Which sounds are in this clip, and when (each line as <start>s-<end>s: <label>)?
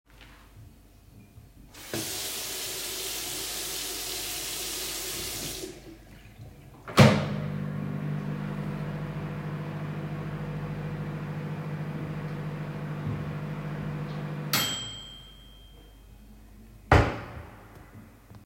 1.5s-6.0s: running water
6.5s-15.5s: microwave
16.9s-17.5s: microwave
16.9s-18.1s: wardrobe or drawer